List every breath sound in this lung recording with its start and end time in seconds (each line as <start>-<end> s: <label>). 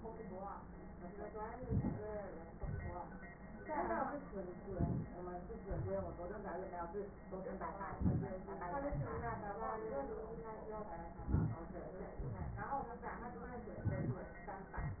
1.50-2.03 s: inhalation
2.52-3.06 s: exhalation
4.67-5.18 s: inhalation
5.62-6.22 s: exhalation
7.91-8.48 s: inhalation
8.92-9.49 s: exhalation
11.27-11.67 s: inhalation
12.16-12.79 s: exhalation
13.76-14.29 s: inhalation